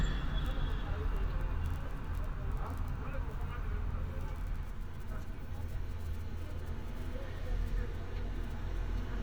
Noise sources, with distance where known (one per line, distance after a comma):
unidentified human voice, far